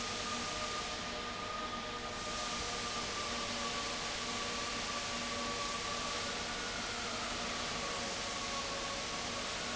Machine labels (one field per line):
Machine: fan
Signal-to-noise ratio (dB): -6 dB